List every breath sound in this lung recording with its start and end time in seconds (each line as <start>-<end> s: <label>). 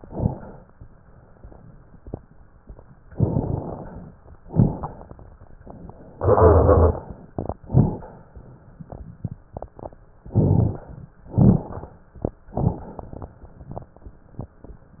0.00-0.63 s: exhalation
0.00-0.63 s: crackles
3.09-4.10 s: inhalation
3.09-4.10 s: crackles
4.48-5.26 s: exhalation
4.48-5.26 s: crackles
10.32-10.82 s: inhalation
10.32-10.82 s: crackles
11.33-11.92 s: exhalation
11.33-11.92 s: crackles
12.58-13.28 s: inhalation
12.58-13.28 s: crackles